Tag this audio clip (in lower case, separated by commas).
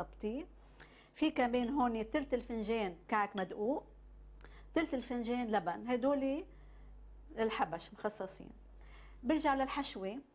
speech